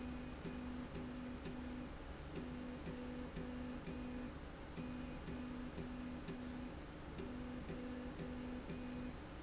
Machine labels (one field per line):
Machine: slide rail